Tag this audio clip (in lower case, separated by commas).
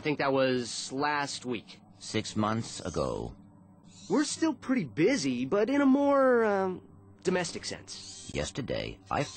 speech